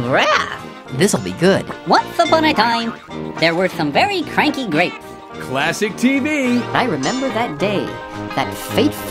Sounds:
speech
music

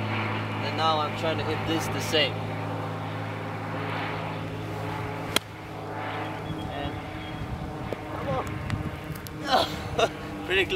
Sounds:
speech

